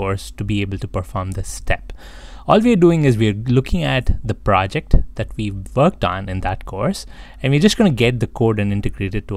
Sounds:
speech

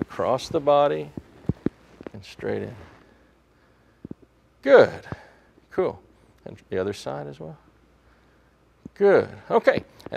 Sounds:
walk
speech

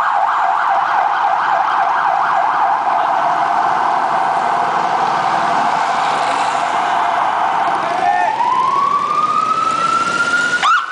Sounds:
outside, urban or man-made
speech

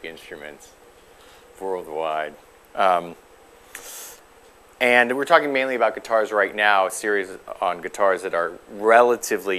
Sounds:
speech

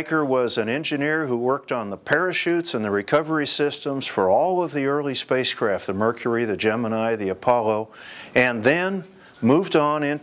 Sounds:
speech

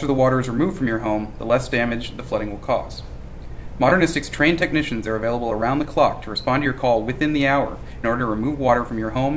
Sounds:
speech

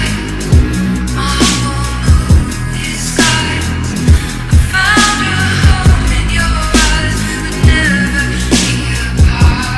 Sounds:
dubstep
electronic music
music

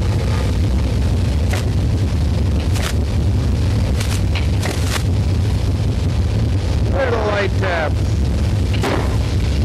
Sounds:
hammer

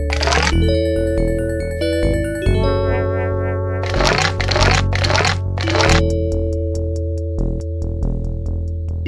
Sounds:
music

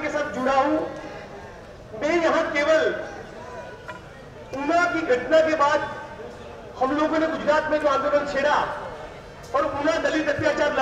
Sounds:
man speaking
speech

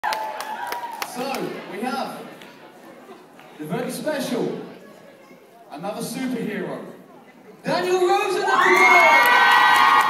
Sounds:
man speaking
speech

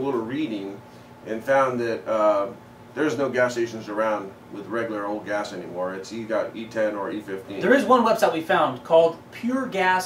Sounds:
speech

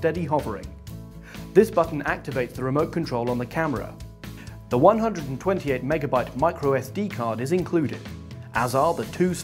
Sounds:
speech
music

